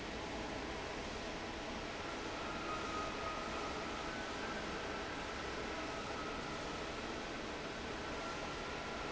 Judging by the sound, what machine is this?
fan